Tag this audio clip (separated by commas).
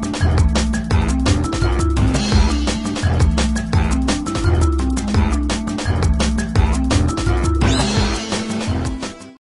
Music